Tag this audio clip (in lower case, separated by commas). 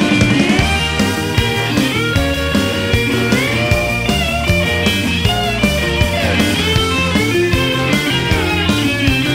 musical instrument, music, bass guitar, electric guitar, guitar, rock music, plucked string instrument